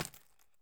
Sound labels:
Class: object falling